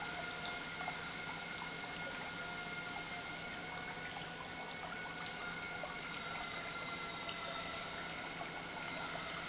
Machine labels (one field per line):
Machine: pump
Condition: normal